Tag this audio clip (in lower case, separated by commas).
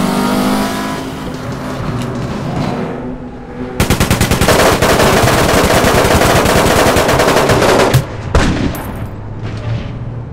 car, vehicle